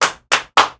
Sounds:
hands, clapping

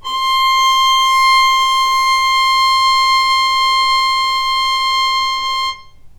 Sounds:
music, musical instrument, bowed string instrument

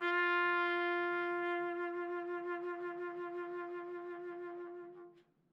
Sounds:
musical instrument, music, brass instrument, trumpet

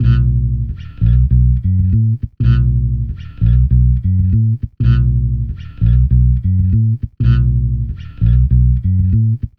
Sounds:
musical instrument, music, plucked string instrument, guitar, bass guitar

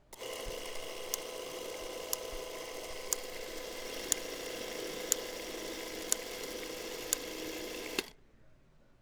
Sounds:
camera, mechanisms

